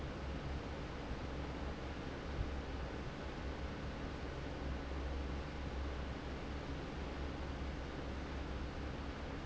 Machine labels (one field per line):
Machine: fan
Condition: normal